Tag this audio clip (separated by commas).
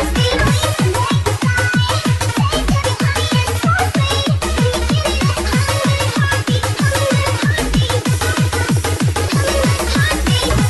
Music